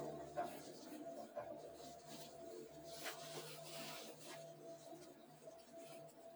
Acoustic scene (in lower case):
elevator